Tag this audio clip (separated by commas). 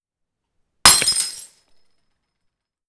Shatter, Glass